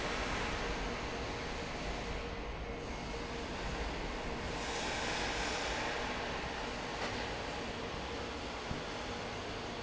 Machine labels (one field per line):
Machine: fan